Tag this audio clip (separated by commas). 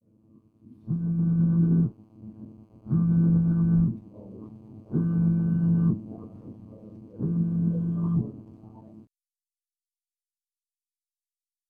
Alarm, Telephone